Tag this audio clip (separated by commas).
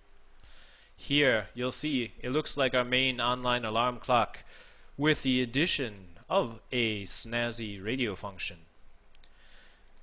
Speech